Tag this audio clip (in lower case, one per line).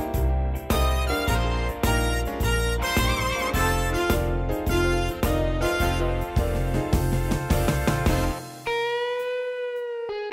music